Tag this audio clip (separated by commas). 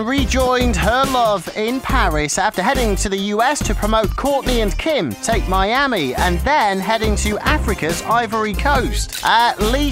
Music, Speech